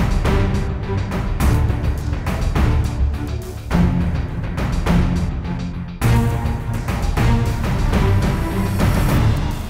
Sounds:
Music

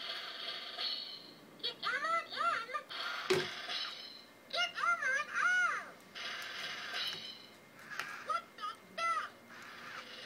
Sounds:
Speech, inside a small room, Music

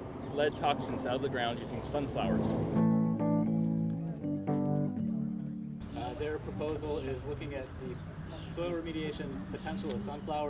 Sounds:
Music, Speech

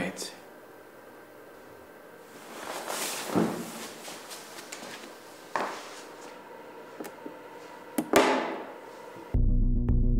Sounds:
Music, Speech

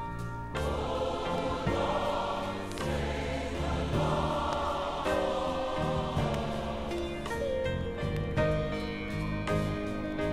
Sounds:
Choir, Gospel music, Music

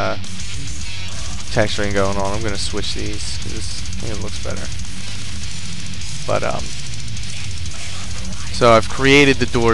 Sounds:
Music, Speech

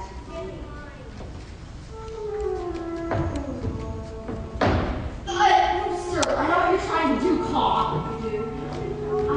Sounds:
Speech, Music

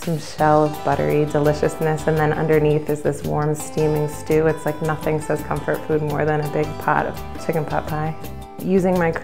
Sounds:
Speech, Music

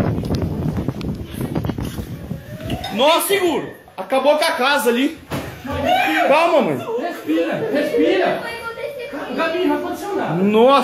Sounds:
Speech

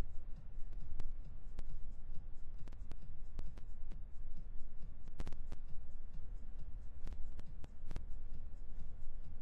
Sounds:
Silence

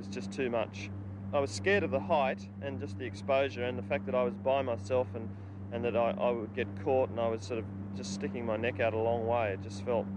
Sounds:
Speech

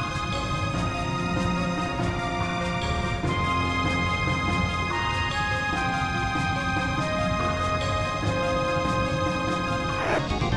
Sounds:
Theme music

